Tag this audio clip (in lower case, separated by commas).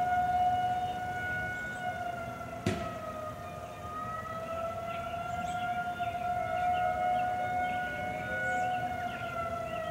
emergency vehicle, siren